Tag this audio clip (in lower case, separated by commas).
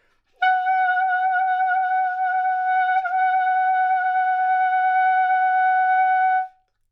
wind instrument, music, musical instrument